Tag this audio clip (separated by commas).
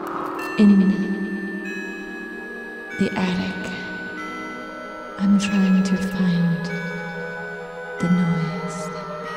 Music, Speech